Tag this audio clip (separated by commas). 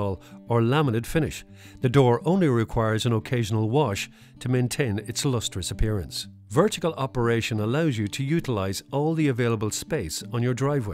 Speech